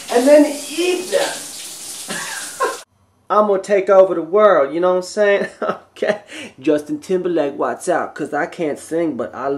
Water splashes and a man speaks